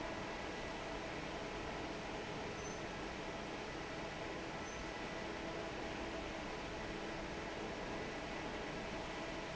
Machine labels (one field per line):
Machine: fan